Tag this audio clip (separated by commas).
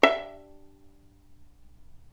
Bowed string instrument, Music, Musical instrument